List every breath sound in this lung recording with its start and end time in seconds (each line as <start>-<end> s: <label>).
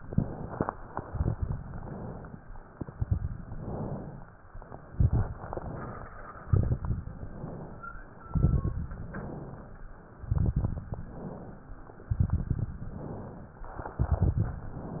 0.00-0.69 s: inhalation
0.71-1.79 s: exhalation
0.71-1.79 s: crackles
1.79-2.60 s: inhalation
2.67-3.53 s: exhalation
2.67-3.53 s: crackles
3.54-4.40 s: inhalation
4.56-5.42 s: exhalation
4.56-5.42 s: crackles
5.45-6.30 s: inhalation
6.38-7.23 s: exhalation
6.38-7.23 s: crackles
7.26-8.12 s: inhalation
8.19-9.04 s: exhalation
8.19-9.04 s: crackles
9.09-9.95 s: inhalation
10.13-10.99 s: exhalation
10.13-10.99 s: crackles
11.00-11.86 s: inhalation
12.08-12.94 s: exhalation
12.08-12.94 s: crackles
12.95-13.81 s: inhalation
13.82-14.67 s: exhalation
13.82-14.67 s: crackles
14.71-15.00 s: inhalation